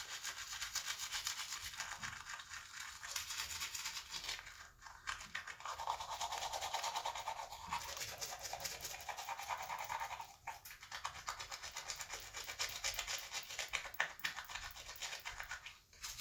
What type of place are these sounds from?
restroom